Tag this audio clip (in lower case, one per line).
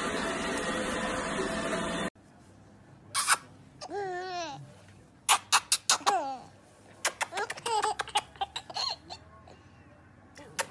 baby laughter